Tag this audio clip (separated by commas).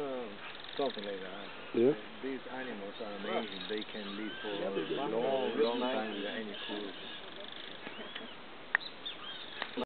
Speech